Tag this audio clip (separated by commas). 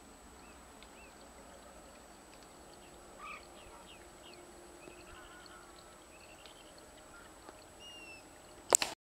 Bird